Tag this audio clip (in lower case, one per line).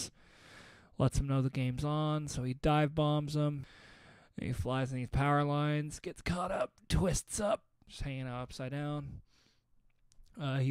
speech